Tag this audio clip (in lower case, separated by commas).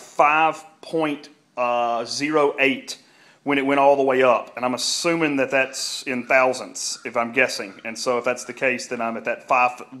speech